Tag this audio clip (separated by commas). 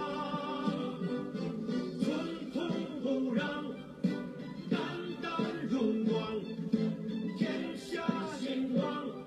Music, Male singing